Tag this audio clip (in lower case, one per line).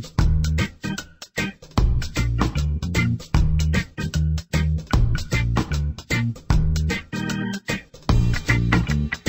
music